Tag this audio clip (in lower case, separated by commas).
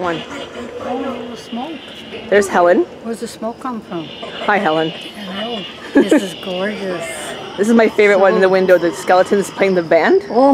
speech